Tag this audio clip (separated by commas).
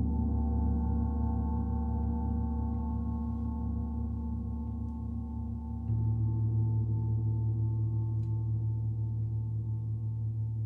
playing gong